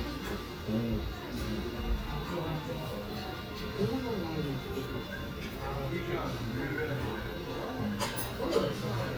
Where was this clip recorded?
in a restaurant